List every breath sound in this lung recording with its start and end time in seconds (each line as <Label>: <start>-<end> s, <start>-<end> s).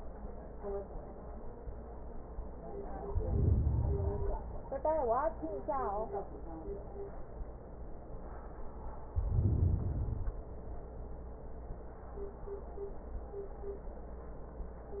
Inhalation: 3.03-4.66 s, 9.13-10.49 s